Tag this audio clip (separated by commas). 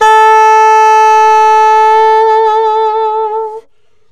woodwind instrument, Music, Musical instrument